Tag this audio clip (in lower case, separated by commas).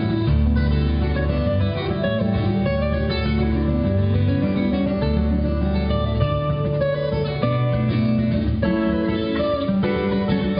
guitar, music, plucked string instrument, acoustic guitar, musical instrument